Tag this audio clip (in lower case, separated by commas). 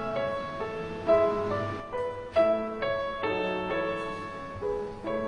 music